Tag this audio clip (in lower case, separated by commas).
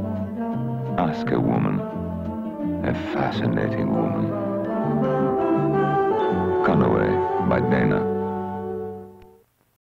music, speech